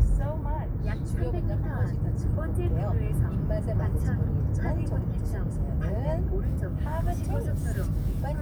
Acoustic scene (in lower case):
car